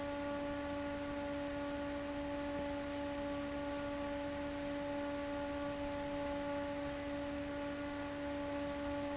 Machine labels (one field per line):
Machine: fan